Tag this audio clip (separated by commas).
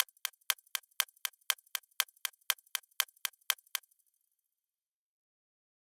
Clock, Mechanisms